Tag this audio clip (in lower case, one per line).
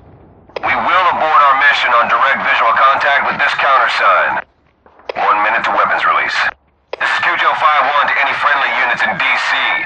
police radio chatter